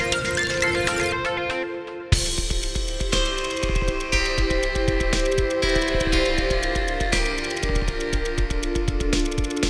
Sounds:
synthesizer, music

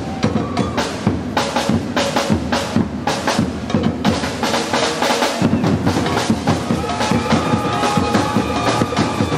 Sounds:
percussion, music

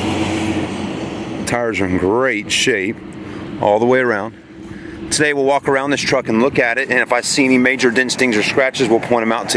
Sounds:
car, vehicle, speech

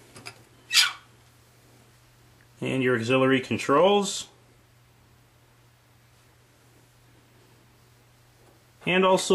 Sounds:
speech, television

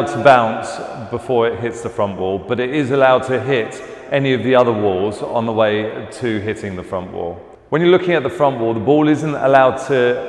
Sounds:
playing squash

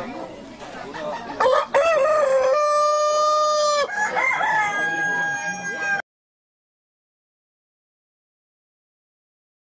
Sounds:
chicken crowing

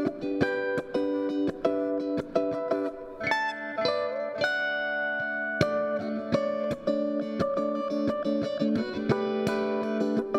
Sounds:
inside a small room, music

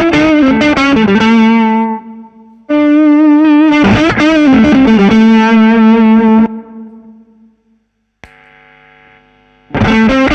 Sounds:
guitar, music, musical instrument, distortion, effects unit, plucked string instrument

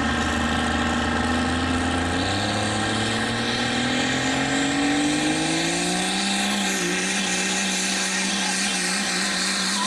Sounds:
speech, vehicle, car

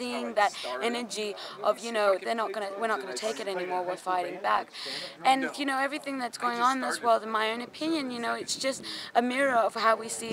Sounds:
speech

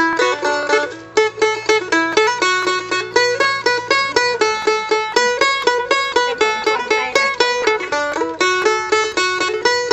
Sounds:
music, bluegrass

